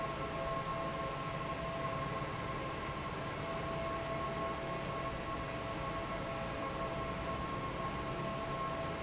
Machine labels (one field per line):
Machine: fan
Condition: normal